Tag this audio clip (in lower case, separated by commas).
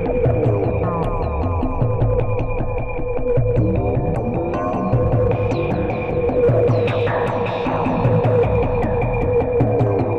echo, music